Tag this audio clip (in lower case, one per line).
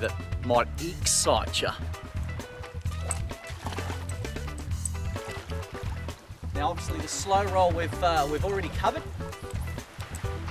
speech
music